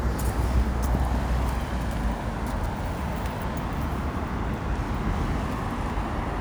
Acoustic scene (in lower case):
street